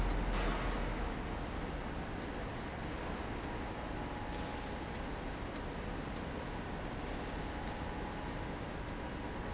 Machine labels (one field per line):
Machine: slide rail